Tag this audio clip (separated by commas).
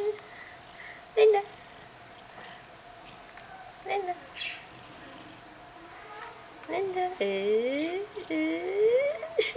Speech